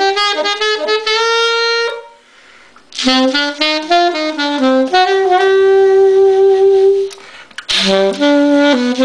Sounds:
musical instrument, music, wind instrument, inside a small room, saxophone, playing saxophone

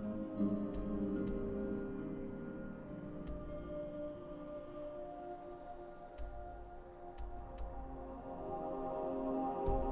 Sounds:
music

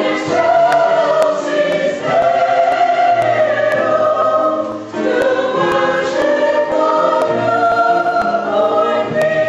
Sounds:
gospel music, singing, choir, music

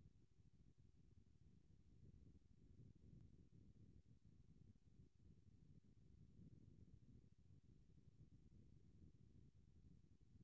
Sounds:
silence

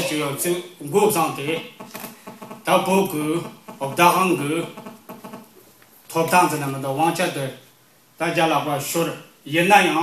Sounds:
inside a large room or hall, speech

